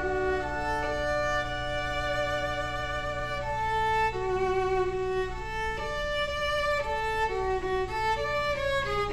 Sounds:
bowed string instrument, music, violin

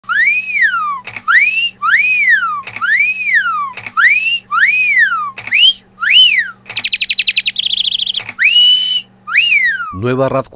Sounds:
whistling, speech

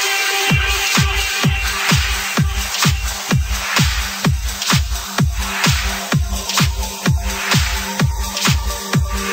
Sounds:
music, electronic dance music

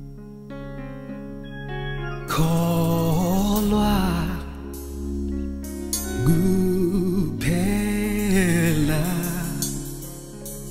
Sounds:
gospel music, music

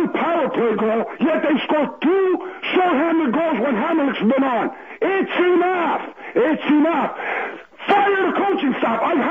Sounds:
radio, speech

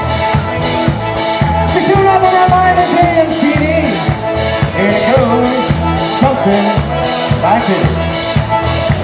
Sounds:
speech, music, rhythm and blues

